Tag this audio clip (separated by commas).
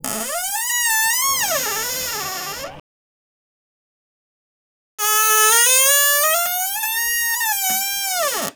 home sounds, Door, Squeak